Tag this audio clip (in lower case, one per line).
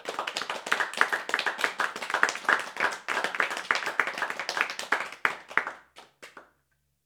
applause
human group actions
clapping
hands